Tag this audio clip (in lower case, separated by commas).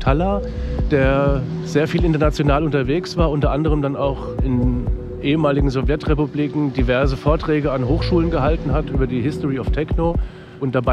speech, music, dubstep